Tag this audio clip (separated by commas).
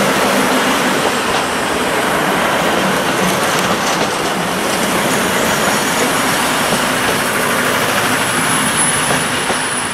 Rail transport, Train, Clickety-clack, Railroad car